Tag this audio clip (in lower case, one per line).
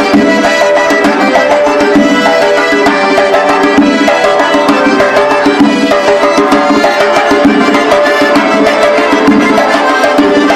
music